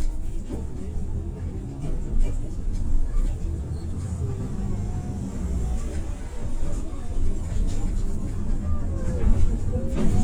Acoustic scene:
bus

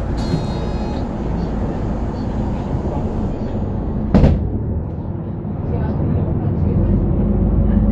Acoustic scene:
bus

